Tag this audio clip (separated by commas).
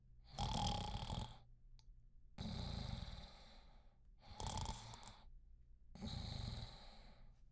Respiratory sounds, Breathing